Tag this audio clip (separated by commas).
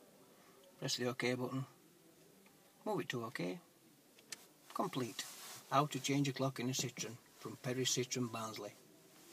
Speech